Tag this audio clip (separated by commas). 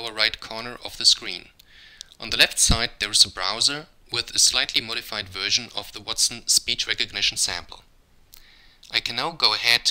Male speech, Speech